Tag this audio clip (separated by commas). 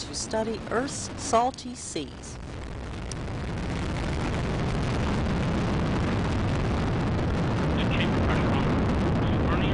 Speech, Eruption